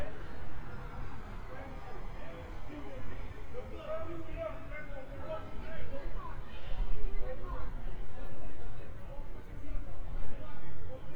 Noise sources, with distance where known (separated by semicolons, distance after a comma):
person or small group shouting, far